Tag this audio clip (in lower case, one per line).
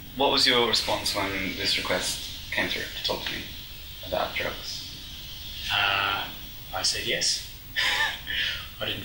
inside a small room
speech